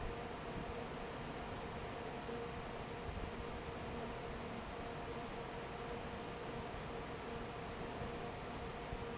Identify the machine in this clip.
fan